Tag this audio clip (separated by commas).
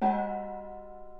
Music, Percussion, Gong, Musical instrument